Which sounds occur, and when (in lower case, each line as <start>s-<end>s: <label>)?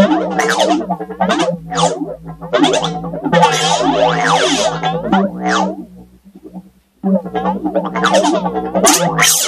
0.0s-6.9s: music
0.0s-9.4s: background noise
7.1s-9.4s: music